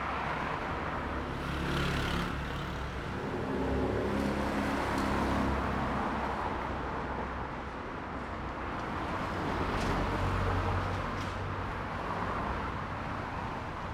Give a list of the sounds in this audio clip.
car, motorcycle, car wheels rolling, car engine accelerating, motorcycle engine accelerating